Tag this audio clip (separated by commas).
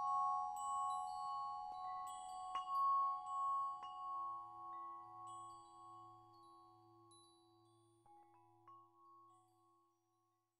Music, Glockenspiel